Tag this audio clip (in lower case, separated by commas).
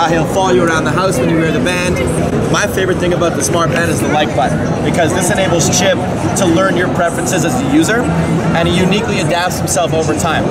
speech